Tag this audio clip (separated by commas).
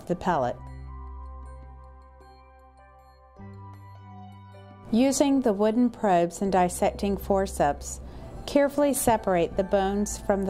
Music, Speech